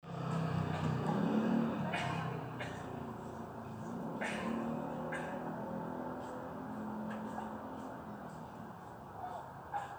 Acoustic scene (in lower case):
residential area